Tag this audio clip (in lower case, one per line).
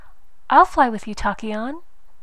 woman speaking
speech
human voice